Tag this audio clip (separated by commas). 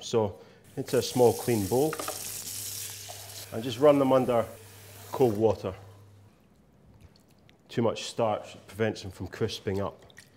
inside a small room, Speech